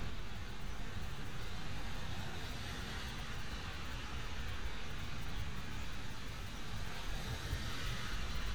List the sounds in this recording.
background noise